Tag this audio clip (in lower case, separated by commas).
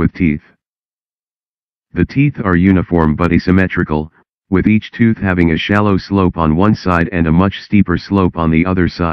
speech